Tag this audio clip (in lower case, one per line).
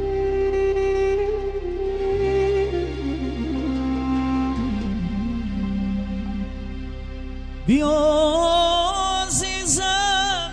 music
new-age music